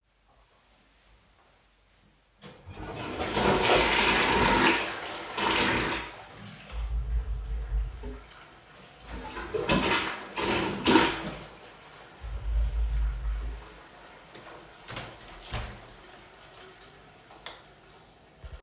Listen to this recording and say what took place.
I am flushing the toilet and then open the window.